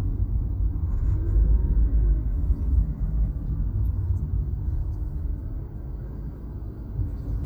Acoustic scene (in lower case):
car